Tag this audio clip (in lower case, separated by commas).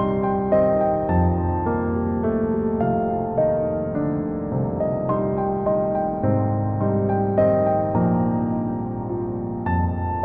music